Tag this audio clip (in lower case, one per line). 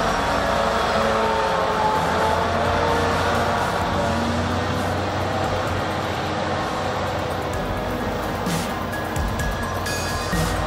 tractor digging